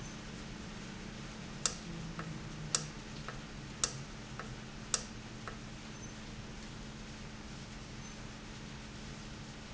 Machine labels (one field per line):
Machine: valve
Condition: normal